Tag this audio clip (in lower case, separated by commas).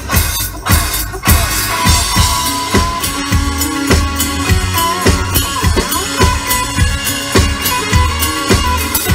music, drum, inside a large room or hall